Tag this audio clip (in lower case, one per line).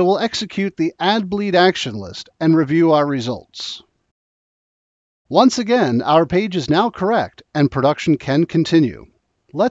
speech